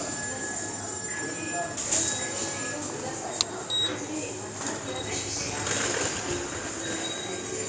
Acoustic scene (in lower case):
subway station